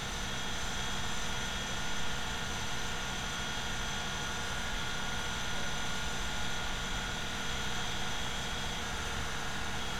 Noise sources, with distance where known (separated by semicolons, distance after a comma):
engine of unclear size